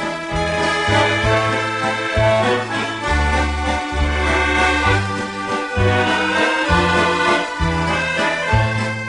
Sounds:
music

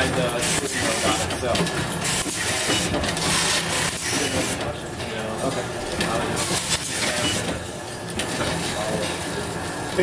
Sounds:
inside a large room or hall, speech

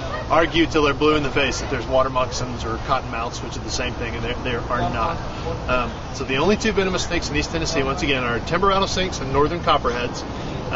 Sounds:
speech, outside, urban or man-made

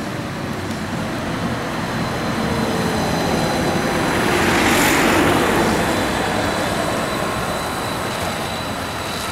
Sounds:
driving buses, car, bus, vehicle

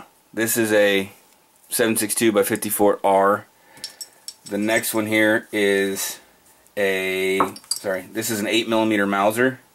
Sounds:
inside a small room, speech

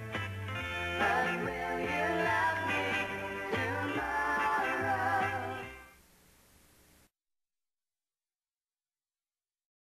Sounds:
music

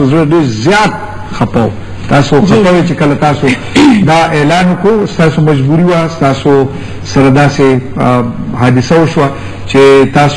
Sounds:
speech

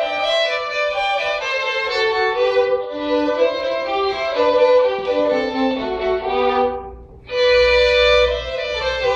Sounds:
musical instrument, violin, music

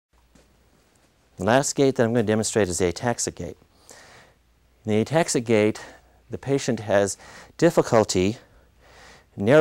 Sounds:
people shuffling

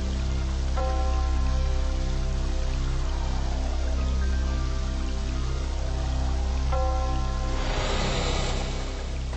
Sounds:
music

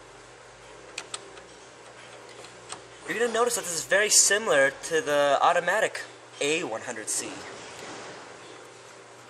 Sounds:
speech

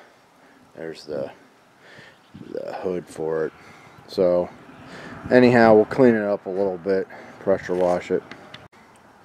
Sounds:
speech

